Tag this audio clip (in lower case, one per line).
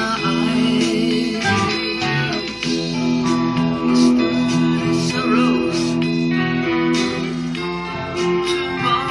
strum
guitar
plucked string instrument
musical instrument
music
electric guitar